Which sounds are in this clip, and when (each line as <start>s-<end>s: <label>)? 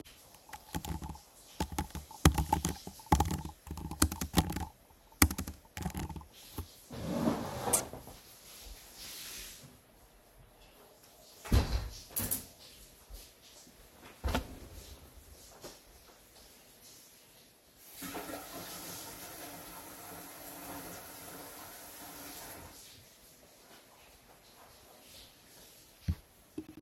0.4s-7.2s: keyboard typing
11.4s-12.9s: window
17.9s-22.9s: running water